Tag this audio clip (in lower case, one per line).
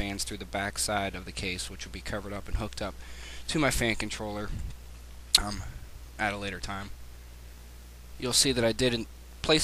speech